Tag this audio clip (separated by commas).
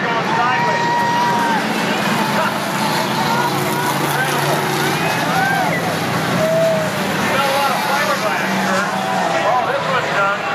Vehicle, Speech